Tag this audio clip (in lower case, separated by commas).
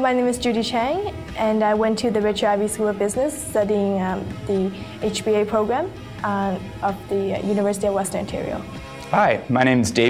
music, speech